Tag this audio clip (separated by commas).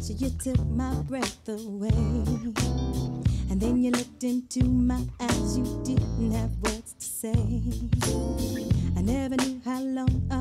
Music